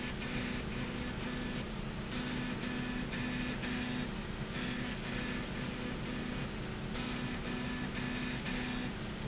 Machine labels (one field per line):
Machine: slide rail